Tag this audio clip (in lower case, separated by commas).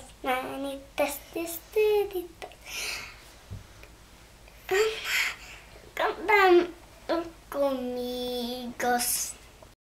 child singing, speech